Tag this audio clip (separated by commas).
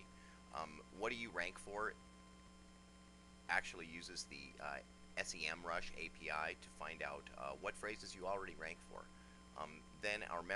Speech